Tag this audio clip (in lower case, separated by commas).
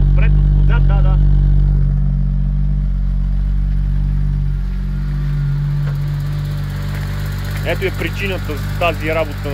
walk, speech